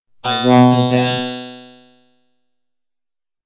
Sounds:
human voice, speech synthesizer, speech

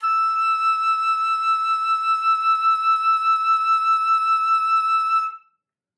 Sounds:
woodwind instrument, musical instrument, music

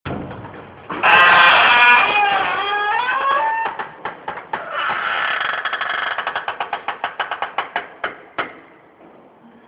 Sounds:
squeak

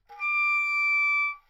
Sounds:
musical instrument, music, wind instrument

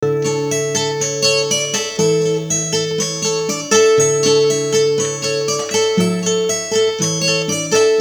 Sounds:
guitar, plucked string instrument, musical instrument, acoustic guitar, music

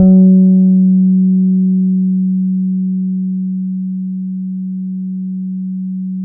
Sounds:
guitar, music, plucked string instrument, bass guitar, musical instrument

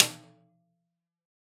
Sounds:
musical instrument, percussion, drum, music, snare drum

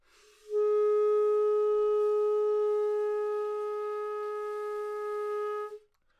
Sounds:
musical instrument, music, woodwind instrument

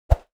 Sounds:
whoosh

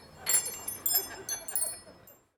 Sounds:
home sounds, door, chime, bell

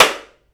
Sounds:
hands, clapping

